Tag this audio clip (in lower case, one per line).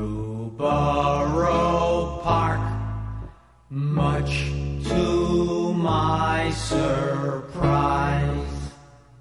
music